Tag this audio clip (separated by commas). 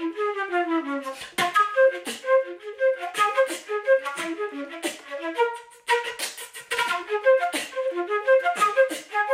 playing flute